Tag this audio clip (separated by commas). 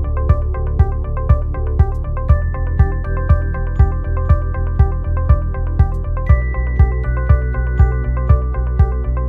Music